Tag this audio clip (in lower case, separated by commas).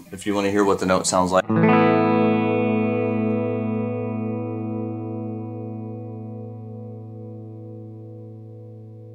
musical instrument, plucked string instrument, speech, distortion, inside a small room, guitar, effects unit, music